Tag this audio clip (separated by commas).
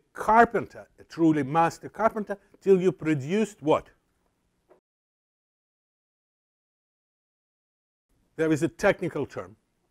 Speech